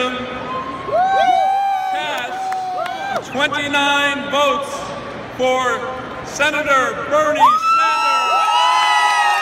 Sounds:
speech, crowd

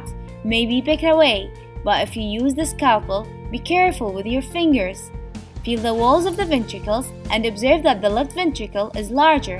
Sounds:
music, speech

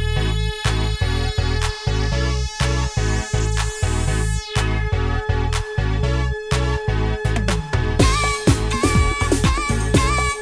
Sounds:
electronic music, music

